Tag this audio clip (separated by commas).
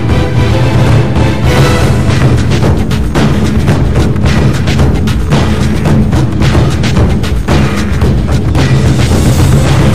Percussion, Music